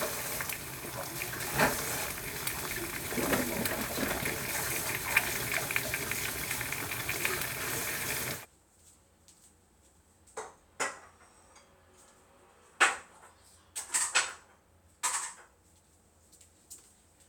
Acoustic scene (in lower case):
kitchen